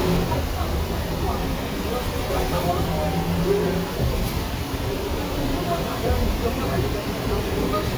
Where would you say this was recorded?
on a bus